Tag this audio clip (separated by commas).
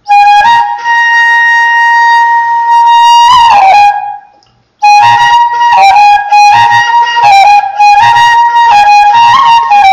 Flute, Music